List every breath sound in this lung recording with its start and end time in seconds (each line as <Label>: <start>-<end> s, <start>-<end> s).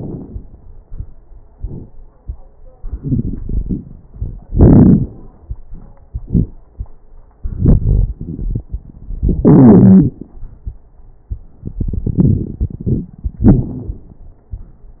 Inhalation: 2.83-3.90 s, 7.44-8.73 s, 11.65-13.12 s
Exhalation: 4.14-5.05 s, 9.22-10.18 s, 13.40-14.09 s
Wheeze: 9.41-10.18 s
Crackles: 2.83-3.90 s, 4.14-5.05 s, 7.44-8.73 s, 11.65-13.12 s, 13.40-14.09 s